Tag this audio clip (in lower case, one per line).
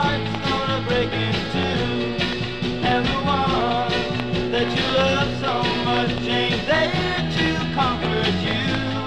music
rhythm and blues